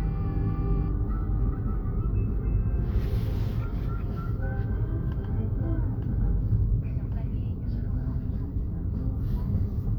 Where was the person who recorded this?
in a car